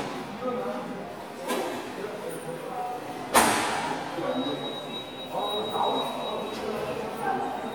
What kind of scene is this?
subway station